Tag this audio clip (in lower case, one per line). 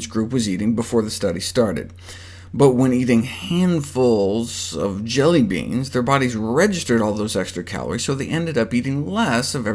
speech